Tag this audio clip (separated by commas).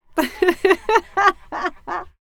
Human voice, Laughter